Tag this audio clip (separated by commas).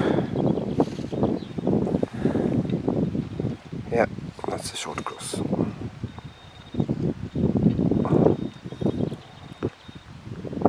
Speech